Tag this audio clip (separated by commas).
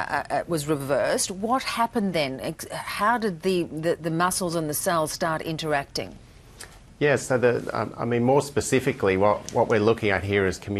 Speech